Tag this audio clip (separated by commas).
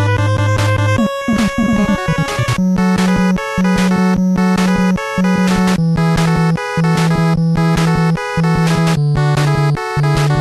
Music